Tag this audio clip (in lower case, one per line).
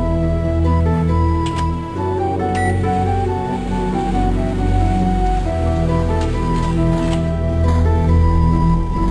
microwave oven
music